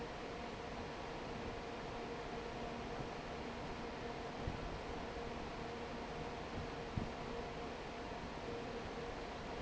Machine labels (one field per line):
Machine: fan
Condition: normal